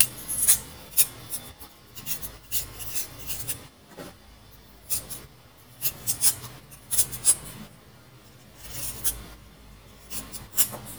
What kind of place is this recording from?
kitchen